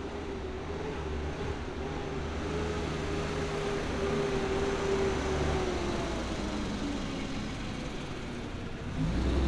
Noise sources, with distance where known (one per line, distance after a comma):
large-sounding engine